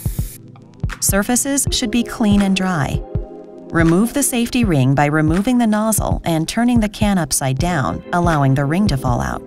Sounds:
music, speech

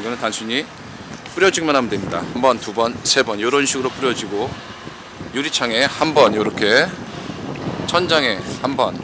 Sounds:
speech

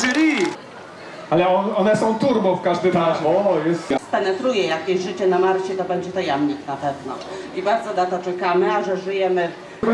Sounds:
speech

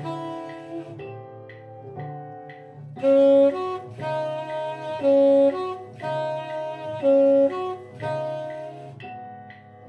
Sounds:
music, musical instrument, saxophone, brass instrument

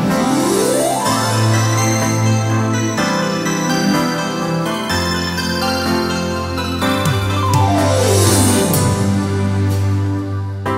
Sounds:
music

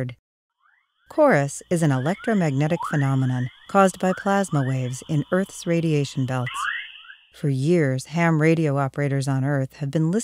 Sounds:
speech

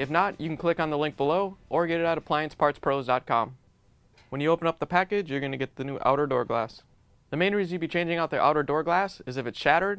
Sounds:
speech

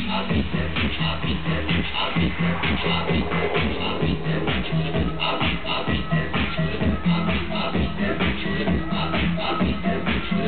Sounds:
outside, urban or man-made, music

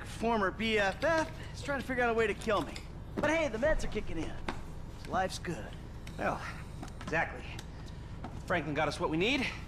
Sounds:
speech, footsteps

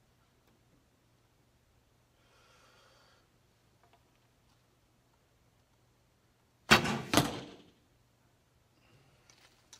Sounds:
arrow

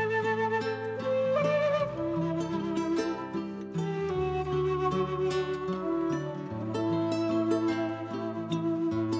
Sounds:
tender music, music

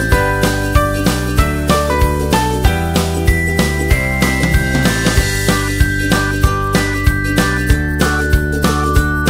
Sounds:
music

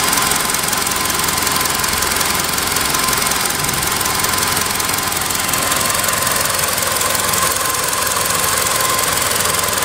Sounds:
car, vehicle, engine, vibration

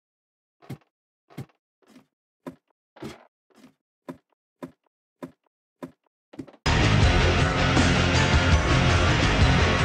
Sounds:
music

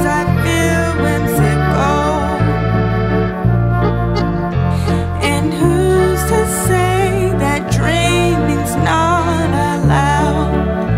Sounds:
music

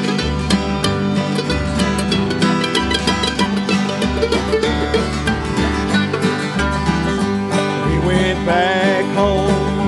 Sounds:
country, guitar, musical instrument, music, bluegrass, banjo

